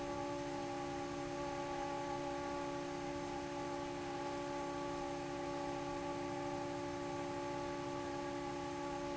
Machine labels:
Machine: fan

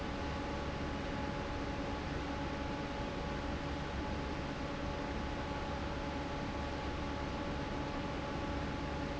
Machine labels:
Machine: fan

